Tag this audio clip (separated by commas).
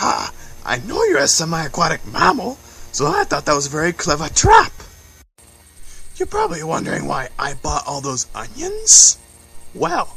Speech